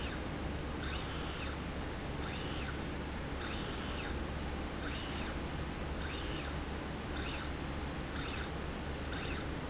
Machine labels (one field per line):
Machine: slide rail